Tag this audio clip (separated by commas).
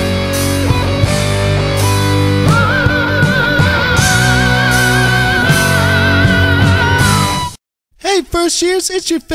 Progressive rock